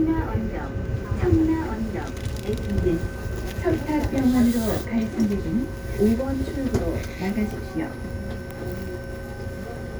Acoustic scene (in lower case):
subway train